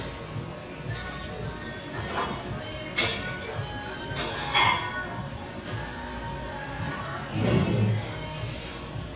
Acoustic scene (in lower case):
crowded indoor space